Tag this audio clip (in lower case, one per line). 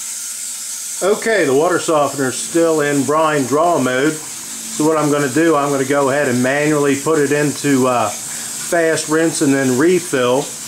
speech